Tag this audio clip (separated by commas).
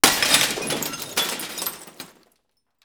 Shatter, Glass